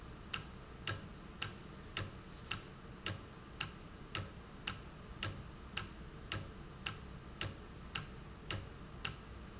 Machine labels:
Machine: valve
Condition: normal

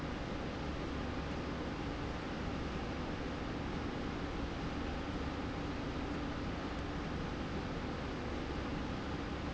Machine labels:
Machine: slide rail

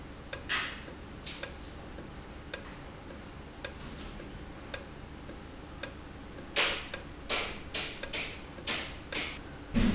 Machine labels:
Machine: valve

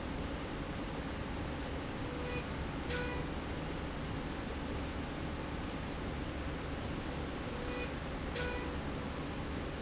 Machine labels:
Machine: slide rail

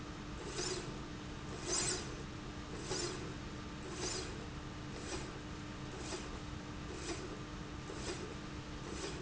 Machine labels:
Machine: slide rail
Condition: normal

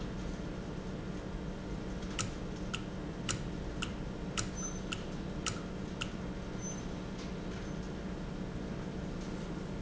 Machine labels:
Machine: valve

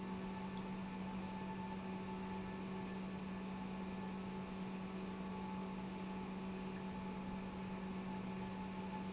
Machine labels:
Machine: pump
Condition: normal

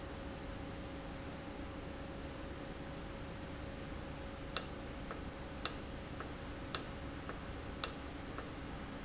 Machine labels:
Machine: valve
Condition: normal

